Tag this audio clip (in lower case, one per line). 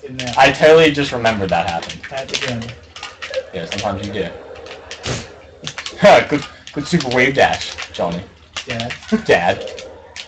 speech